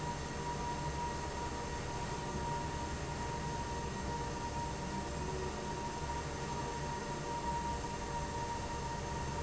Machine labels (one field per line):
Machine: fan